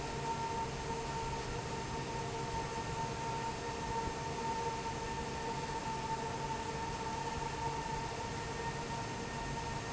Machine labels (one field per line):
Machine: fan